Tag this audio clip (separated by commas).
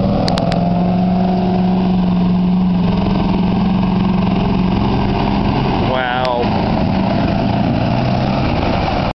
Speech